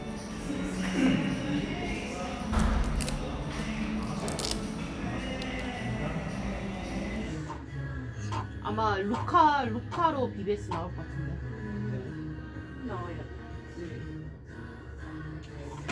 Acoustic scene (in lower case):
cafe